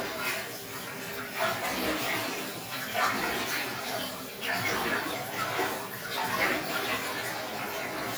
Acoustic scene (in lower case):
restroom